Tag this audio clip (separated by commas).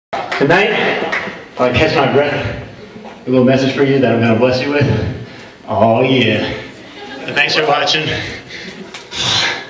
Speech, Male speech